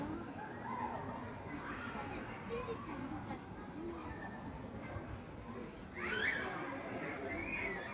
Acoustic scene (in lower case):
park